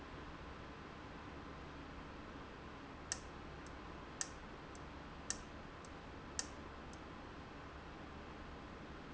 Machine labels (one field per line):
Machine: valve